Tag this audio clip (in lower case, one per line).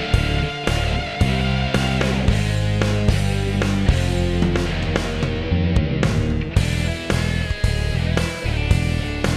music